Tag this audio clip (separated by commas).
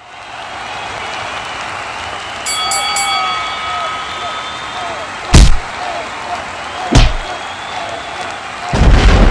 Boom, Speech